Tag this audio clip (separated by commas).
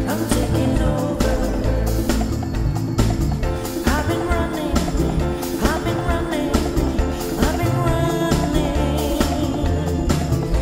Gospel music, Music